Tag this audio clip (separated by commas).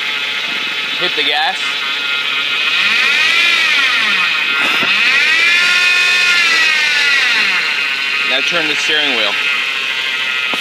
Heavy engine (low frequency), Speech